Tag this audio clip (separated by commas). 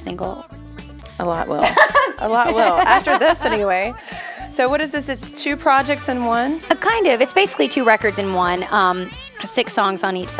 Music, Speech